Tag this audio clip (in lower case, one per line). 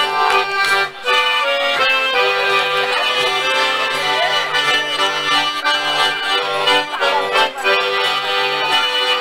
music